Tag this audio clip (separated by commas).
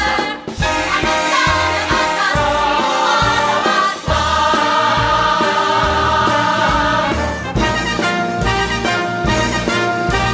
Swing music, Music